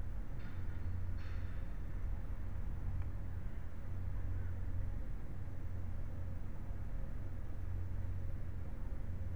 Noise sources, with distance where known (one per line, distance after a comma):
non-machinery impact, far
car horn, far